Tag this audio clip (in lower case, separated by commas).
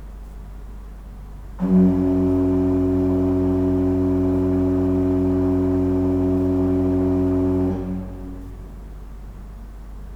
musical instrument, music, organ, keyboard (musical)